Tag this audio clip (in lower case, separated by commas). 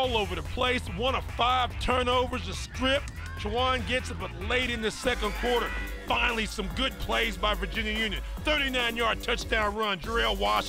speech, music